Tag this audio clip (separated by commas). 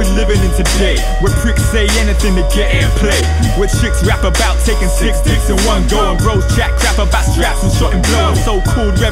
Jingle (music), Music